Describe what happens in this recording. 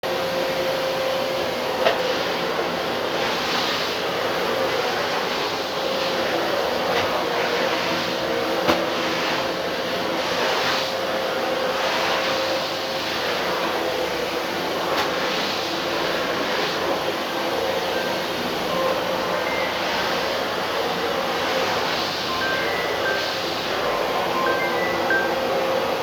I vaccum the floors room which has a hard surface while a phone rings, my footsteps are drowned out by the vacuums volume